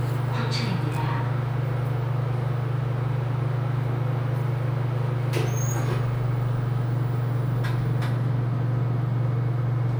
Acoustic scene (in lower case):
elevator